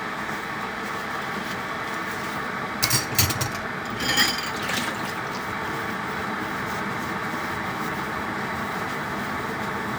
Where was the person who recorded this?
in a kitchen